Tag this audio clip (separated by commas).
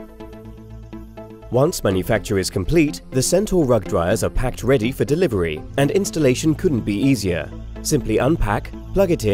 Speech, Music